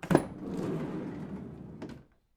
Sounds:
Sliding door, Door, home sounds

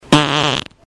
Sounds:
Fart

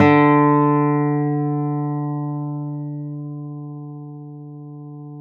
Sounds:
Guitar, Plucked string instrument, Music, Musical instrument, Acoustic guitar

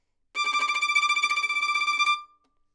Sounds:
Musical instrument, Music, Bowed string instrument

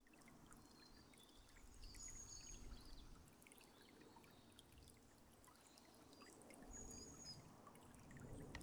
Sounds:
Wild animals, Bird, Animal, Water, Stream, Bird vocalization

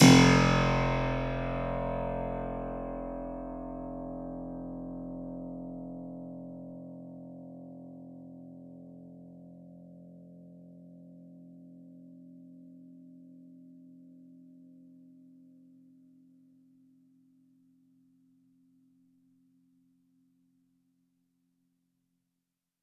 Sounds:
Music, Keyboard (musical), Musical instrument

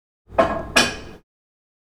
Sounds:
dishes, pots and pans, Domestic sounds

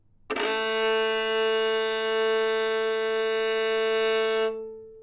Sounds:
Music, Musical instrument, Bowed string instrument

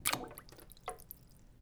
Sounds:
Liquid, Splash, Water

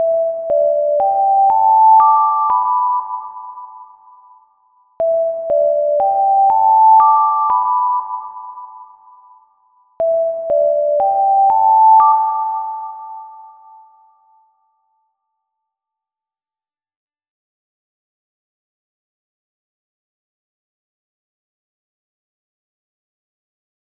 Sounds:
Alarm

